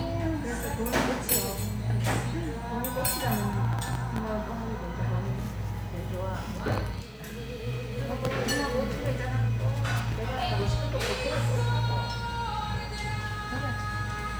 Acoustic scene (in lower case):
restaurant